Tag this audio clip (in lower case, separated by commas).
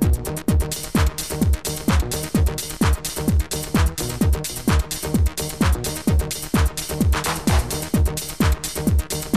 electronic music, music, techno